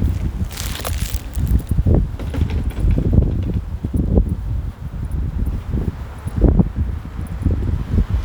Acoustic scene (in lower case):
residential area